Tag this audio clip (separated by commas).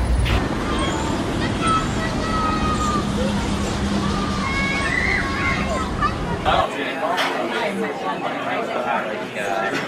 Speech